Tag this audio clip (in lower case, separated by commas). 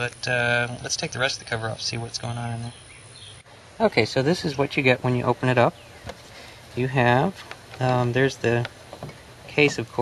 outside, rural or natural, environmental noise, speech